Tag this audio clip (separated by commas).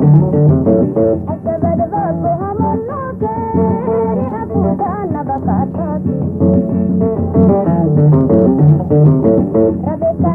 Music, Middle Eastern music